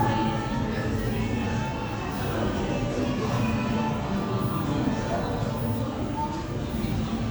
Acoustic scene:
crowded indoor space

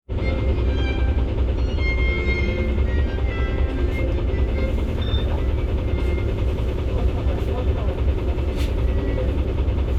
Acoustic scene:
bus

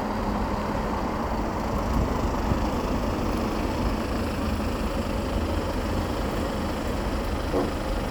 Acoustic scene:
street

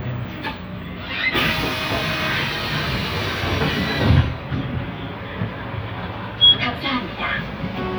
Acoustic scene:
bus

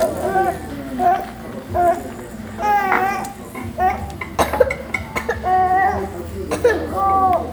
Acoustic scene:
restaurant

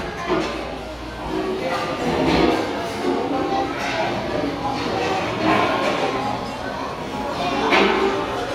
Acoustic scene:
restaurant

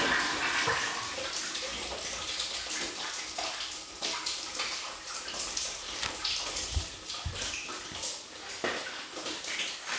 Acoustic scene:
restroom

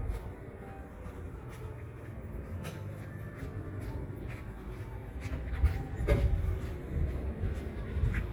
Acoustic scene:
residential area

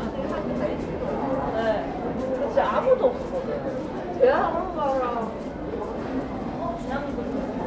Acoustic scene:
crowded indoor space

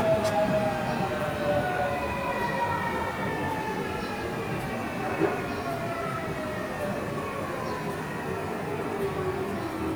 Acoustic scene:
subway station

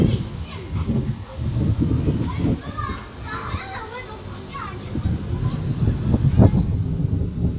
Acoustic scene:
residential area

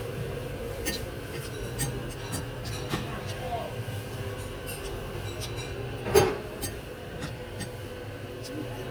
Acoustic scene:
restaurant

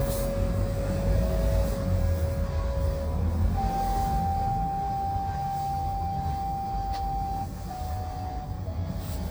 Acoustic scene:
car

